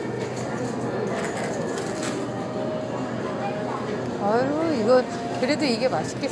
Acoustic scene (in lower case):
crowded indoor space